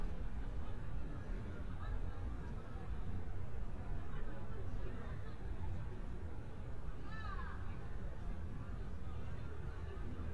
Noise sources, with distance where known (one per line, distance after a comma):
person or small group talking, far
person or small group shouting, far